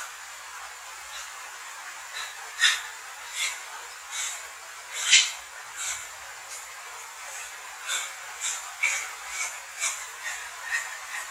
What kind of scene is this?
restroom